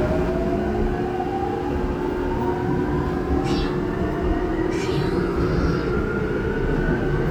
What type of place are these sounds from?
subway train